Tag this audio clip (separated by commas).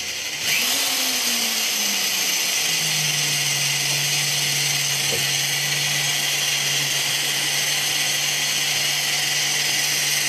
inside a small room